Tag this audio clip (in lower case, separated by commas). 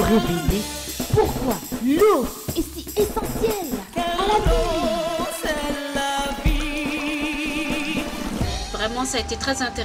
speech, music, stream